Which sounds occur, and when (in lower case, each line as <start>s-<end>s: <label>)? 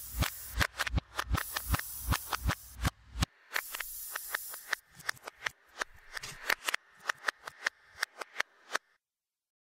0.0s-8.9s: mechanisms
3.5s-4.7s: spray
8.7s-8.8s: generic impact sounds